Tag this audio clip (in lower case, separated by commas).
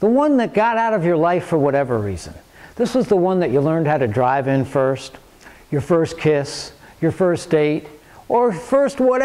speech